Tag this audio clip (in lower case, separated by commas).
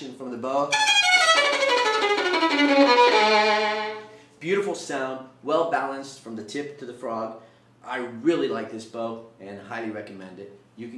music, fiddle, speech, musical instrument